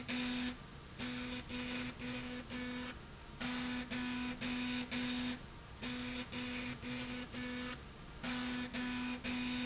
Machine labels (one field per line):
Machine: slide rail